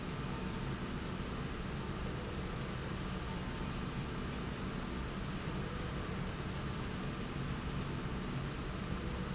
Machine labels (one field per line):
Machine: slide rail